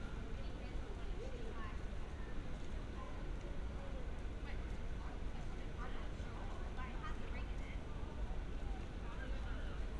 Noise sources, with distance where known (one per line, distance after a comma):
person or small group talking, far